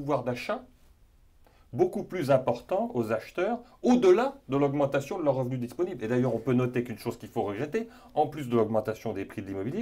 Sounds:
Speech

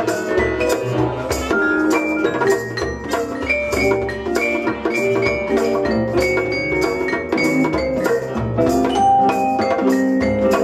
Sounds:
playing vibraphone

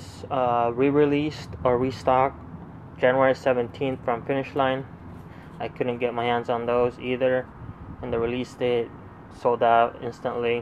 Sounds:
Speech

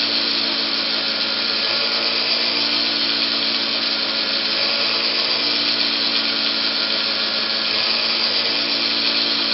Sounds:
Drill, Power tool, Tools

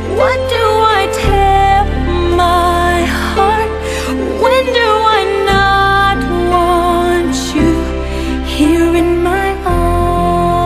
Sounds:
Music

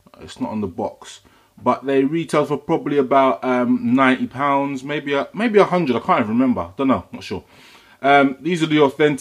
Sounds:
Speech

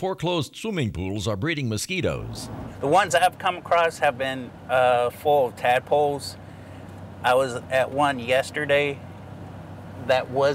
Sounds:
Speech

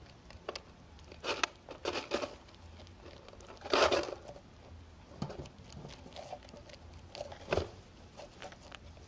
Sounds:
chinchilla barking

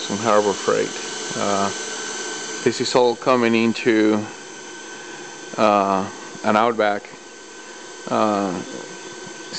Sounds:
Speech

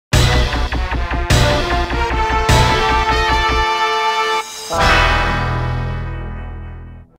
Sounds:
Music, Scary music

